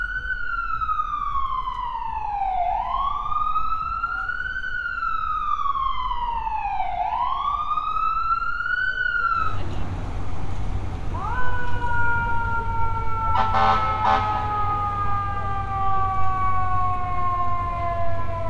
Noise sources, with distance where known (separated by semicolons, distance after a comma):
siren, near